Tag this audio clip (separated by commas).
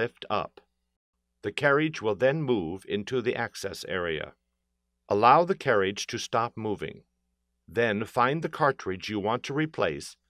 Speech